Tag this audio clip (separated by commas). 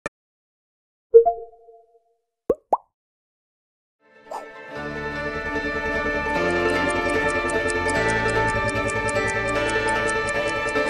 Music, Plop